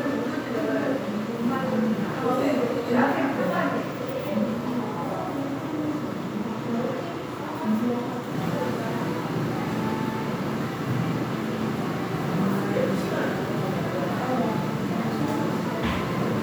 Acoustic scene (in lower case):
crowded indoor space